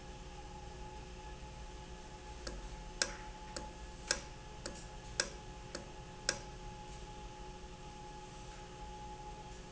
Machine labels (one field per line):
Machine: valve